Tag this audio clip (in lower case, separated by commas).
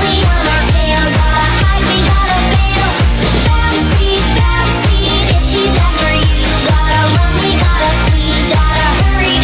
music, exciting music